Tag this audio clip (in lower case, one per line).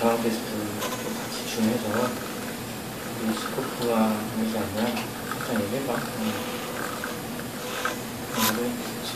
speech